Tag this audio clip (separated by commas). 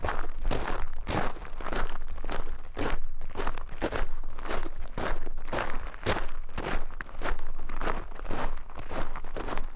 Walk